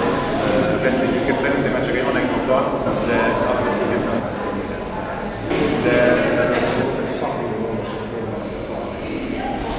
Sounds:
Speech

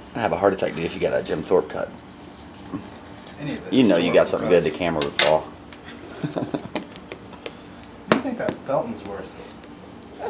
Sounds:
Speech

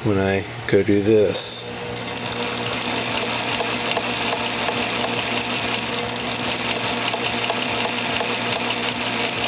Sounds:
Sewing machine, Speech

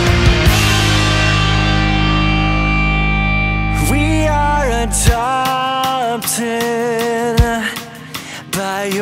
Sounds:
Music, Rhythm and blues

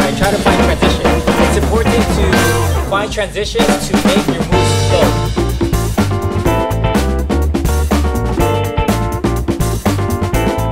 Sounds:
Rimshot

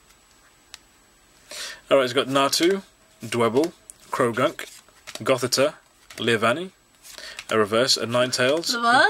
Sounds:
Scissors, Speech

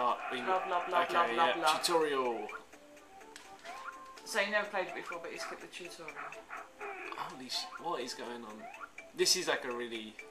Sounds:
Speech, Music

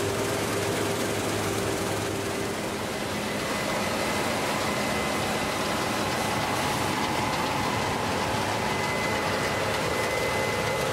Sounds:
Vehicle, outside, rural or natural

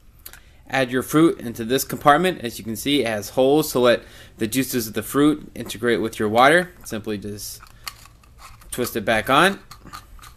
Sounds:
Speech

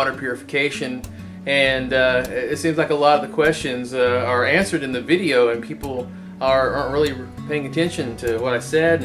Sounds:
Music, Speech

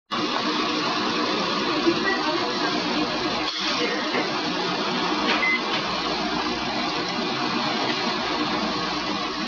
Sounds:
Speech

